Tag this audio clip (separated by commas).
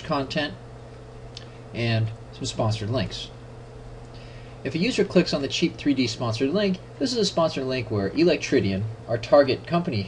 Speech